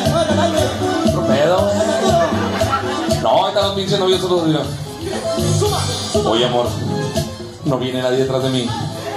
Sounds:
Speech, Music

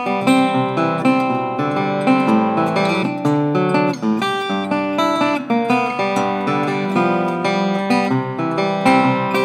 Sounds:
Music

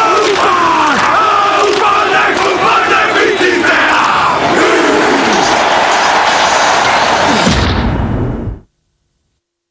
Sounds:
Speech

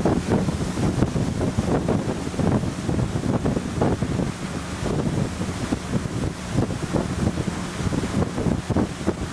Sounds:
Vehicle, Boat, speedboat

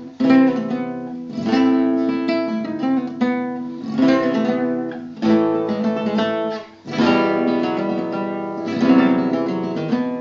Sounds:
Music of Latin America, Acoustic guitar, Strum, Plucked string instrument, Guitar, Flamenco, Musical instrument, Music, Electric guitar

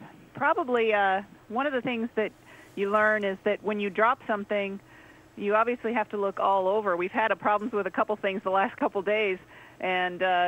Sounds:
Speech

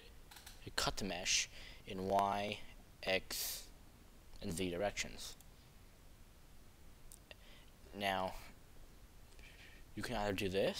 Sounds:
Speech

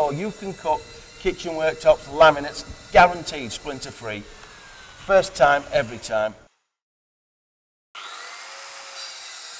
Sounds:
Tools, Power tool

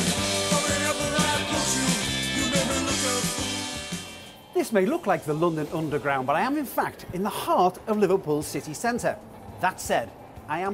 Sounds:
Music, Speech

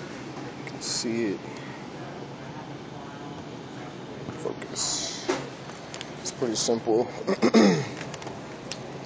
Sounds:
Speech

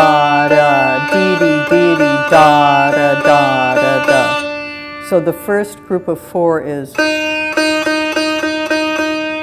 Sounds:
playing sitar

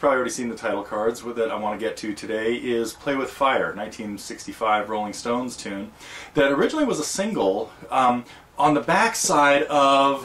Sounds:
Speech

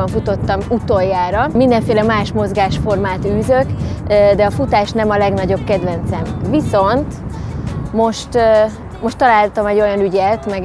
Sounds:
outside, urban or man-made, Speech, Music

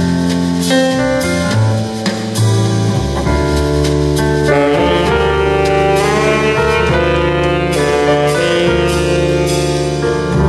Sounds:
Wind instrument, Musical instrument, Saxophone

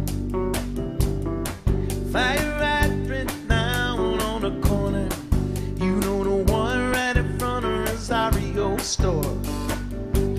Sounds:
Music, Orchestra

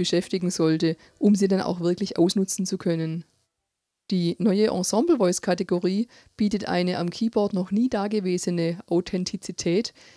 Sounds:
Speech

